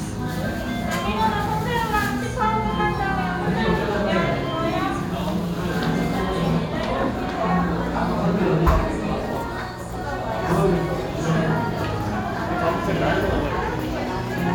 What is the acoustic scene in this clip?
restaurant